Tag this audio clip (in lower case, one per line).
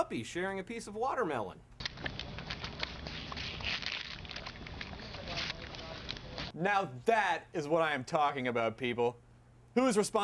speech